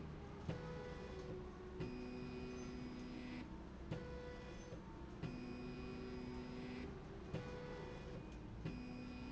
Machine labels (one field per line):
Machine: slide rail